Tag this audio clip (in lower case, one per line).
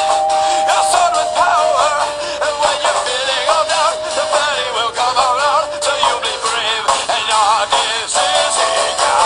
music